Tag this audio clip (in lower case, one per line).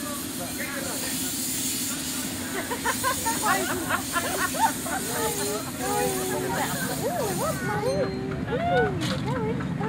speech